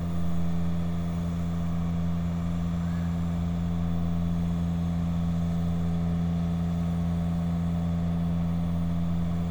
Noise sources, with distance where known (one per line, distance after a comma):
engine of unclear size, near